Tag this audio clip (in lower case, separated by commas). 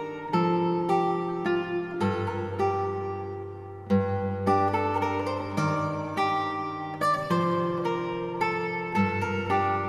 music